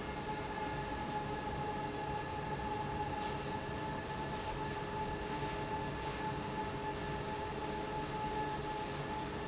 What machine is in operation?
fan